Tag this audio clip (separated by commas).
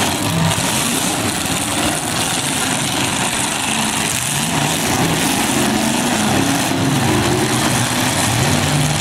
Vehicle, Car, Truck